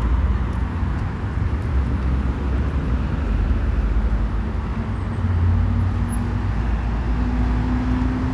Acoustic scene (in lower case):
street